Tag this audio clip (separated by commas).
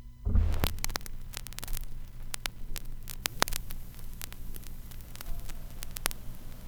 Crackle